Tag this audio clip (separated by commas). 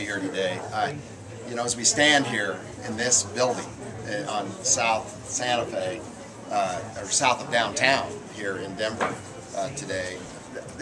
Speech